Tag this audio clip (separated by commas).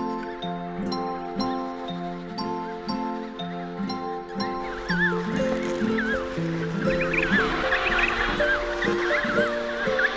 penguins braying